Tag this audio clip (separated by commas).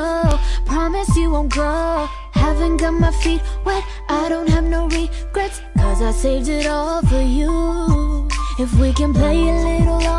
Music